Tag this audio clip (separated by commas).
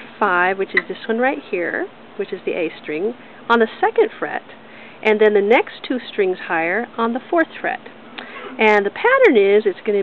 Speech